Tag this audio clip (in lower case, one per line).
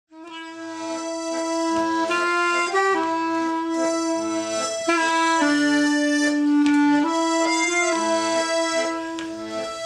playing accordion
accordion